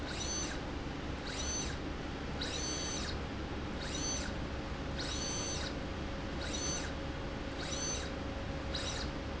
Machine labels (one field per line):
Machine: slide rail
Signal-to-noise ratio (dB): -6 dB